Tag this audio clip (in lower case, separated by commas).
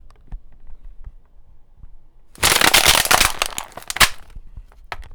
crushing